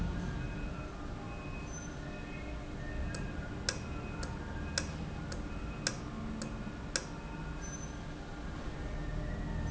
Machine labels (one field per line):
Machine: valve